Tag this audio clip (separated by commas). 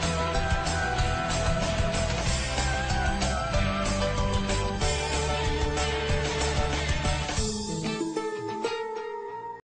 Music